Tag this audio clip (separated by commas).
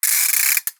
Ratchet, Mechanisms